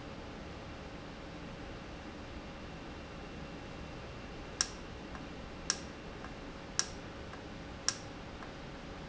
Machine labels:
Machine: valve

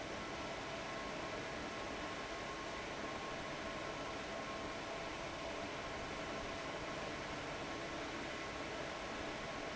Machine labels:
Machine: fan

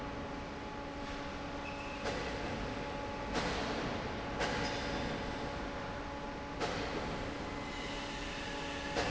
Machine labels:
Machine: fan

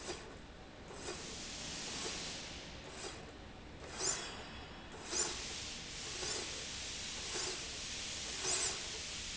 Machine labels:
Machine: slide rail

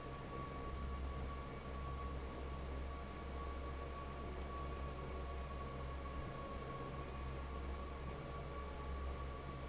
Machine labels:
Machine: fan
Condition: normal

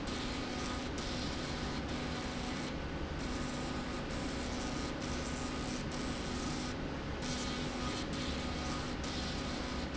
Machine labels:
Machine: slide rail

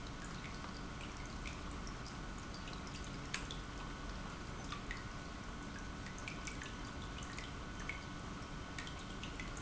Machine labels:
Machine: pump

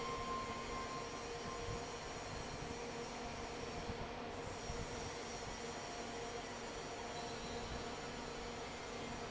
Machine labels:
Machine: fan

